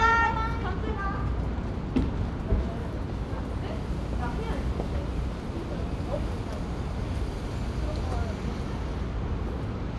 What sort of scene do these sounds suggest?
residential area